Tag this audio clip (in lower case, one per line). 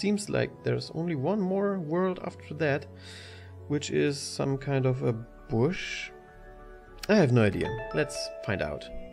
music
speech